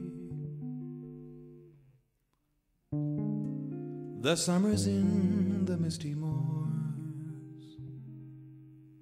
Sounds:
music

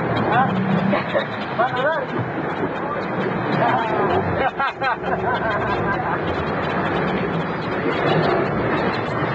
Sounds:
speech, water vehicle

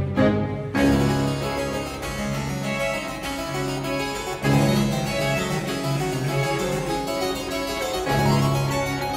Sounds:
playing harpsichord

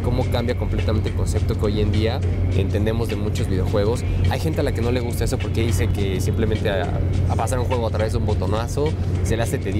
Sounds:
speech, music

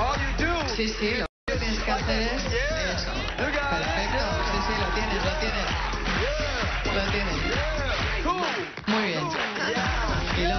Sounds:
speech, music

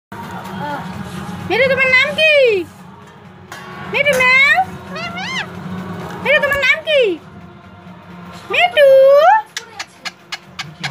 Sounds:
parrot talking

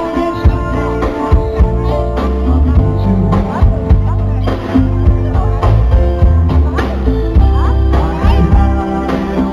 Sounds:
music

